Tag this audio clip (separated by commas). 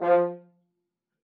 Brass instrument, Musical instrument, Music